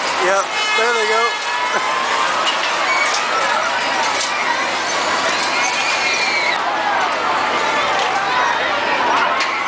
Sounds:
speech

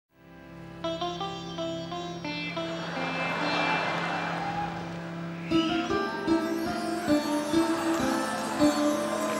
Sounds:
playing sitar

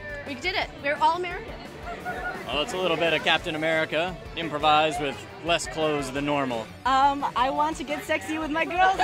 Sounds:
music, speech

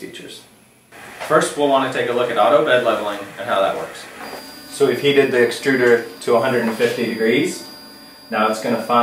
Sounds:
speech, printer

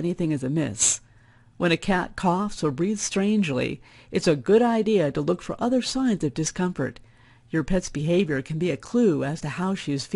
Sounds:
speech, monologue

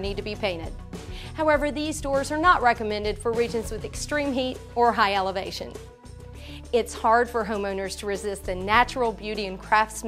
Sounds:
speech, music

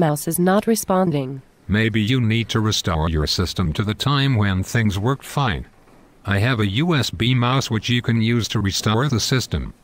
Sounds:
speech

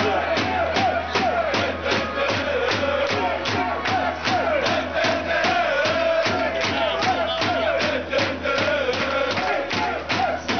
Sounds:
music, male singing

